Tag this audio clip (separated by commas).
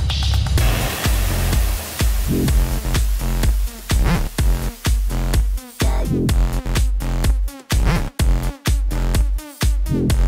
Music